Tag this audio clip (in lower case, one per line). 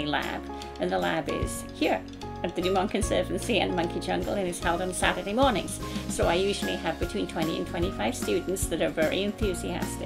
speech
music